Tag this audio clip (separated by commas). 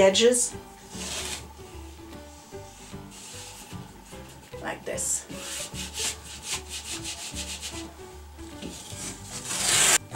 Music, Speech